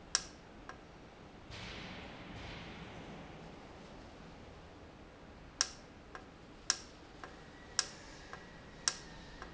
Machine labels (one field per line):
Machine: valve